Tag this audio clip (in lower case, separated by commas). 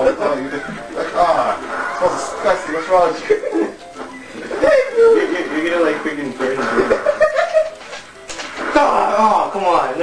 inside a small room, music, speech